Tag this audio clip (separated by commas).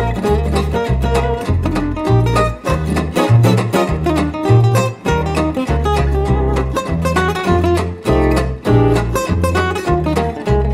Music, Guitar, Acoustic guitar, Electric guitar, Musical instrument